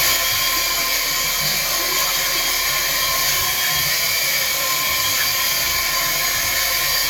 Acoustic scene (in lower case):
restroom